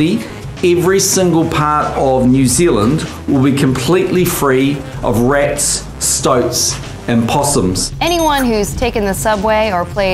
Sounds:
speech, music

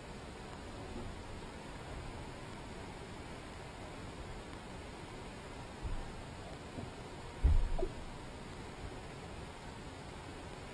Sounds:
boat, vehicle

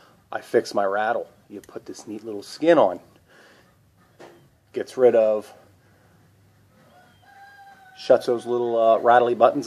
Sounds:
man speaking, speech

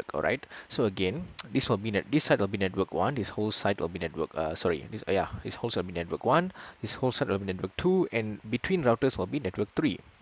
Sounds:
speech

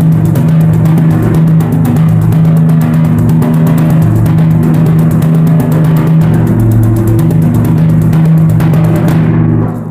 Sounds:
playing timpani

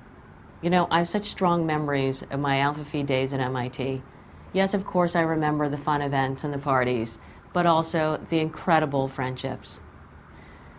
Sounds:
female speech, speech, monologue

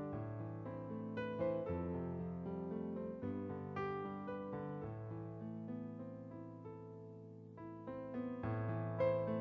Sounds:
music

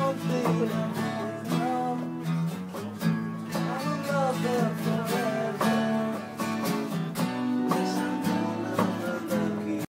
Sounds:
music

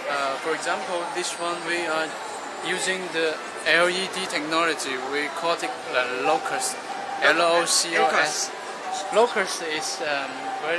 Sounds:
speech

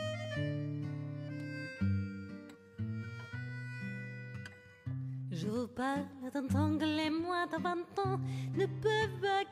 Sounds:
music

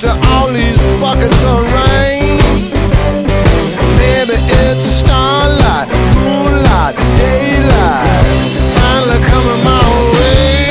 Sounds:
musical instrument, singing, rock music, music

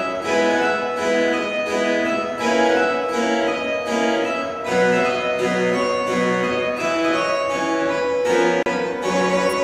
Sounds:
music, harpsichord

